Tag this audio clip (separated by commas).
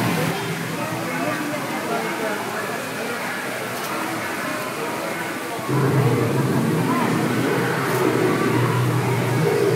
dinosaurs bellowing